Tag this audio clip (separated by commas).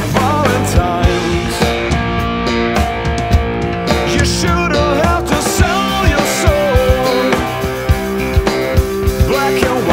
Music